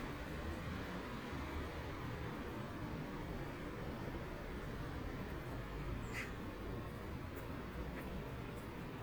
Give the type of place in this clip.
residential area